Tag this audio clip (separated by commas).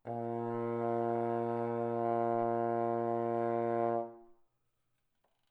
Music, Musical instrument, Brass instrument